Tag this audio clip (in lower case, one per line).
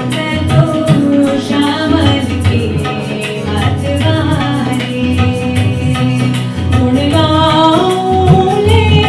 soundtrack music
music